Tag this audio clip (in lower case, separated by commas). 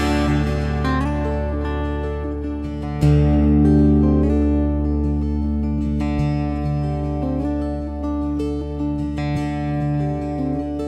musical instrument, acoustic guitar, plucked string instrument, music, slide guitar, guitar